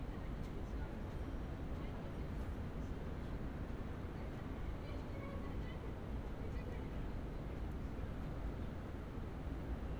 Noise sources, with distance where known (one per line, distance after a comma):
unidentified human voice